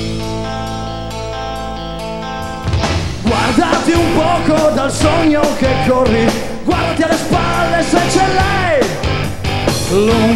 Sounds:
Music

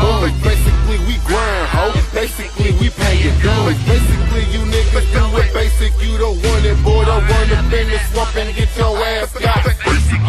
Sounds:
Music, Hip hop music

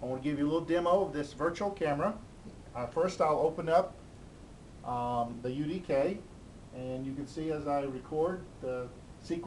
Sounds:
Speech

